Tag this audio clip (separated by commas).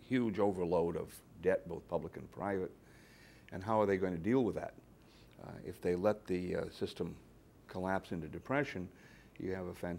Speech